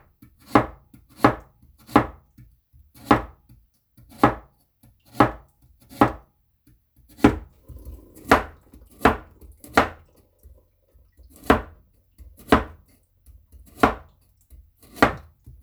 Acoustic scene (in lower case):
kitchen